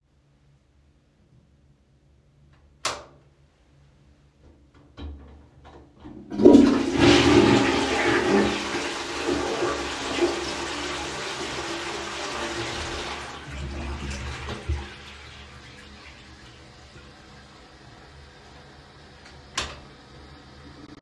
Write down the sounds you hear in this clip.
light switch, toilet flushing